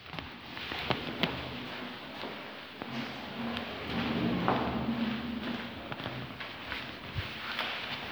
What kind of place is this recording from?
elevator